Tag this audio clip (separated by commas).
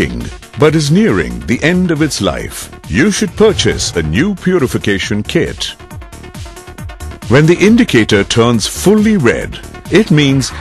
Speech, Music